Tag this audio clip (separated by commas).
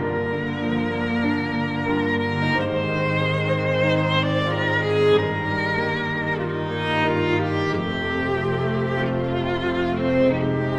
Music